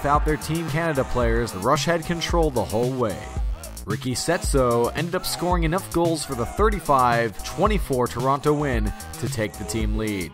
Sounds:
Music, Speech

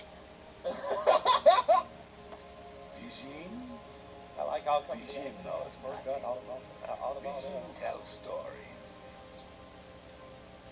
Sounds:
Music, Speech

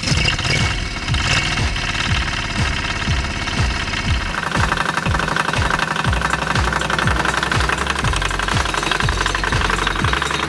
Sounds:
Vehicle, Lawn mower

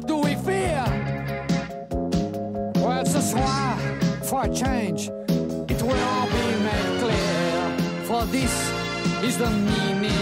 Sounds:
Music, Speech

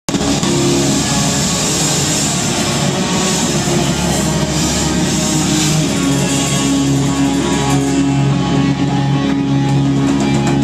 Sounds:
Guitar, Musical instrument, Crowd, Heavy metal, Rock music, Drum kit, Music

